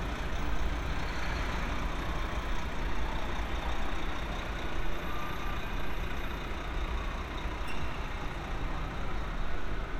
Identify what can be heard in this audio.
large-sounding engine, siren